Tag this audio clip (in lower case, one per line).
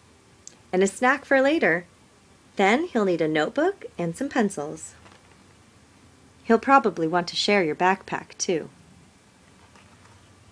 speech